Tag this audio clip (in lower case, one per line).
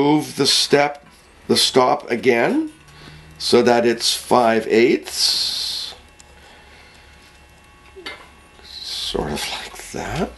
speech